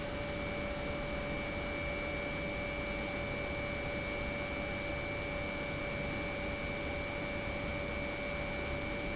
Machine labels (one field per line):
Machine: pump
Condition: normal